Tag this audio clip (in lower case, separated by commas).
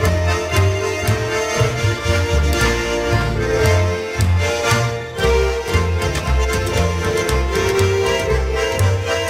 music